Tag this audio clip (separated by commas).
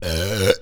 eructation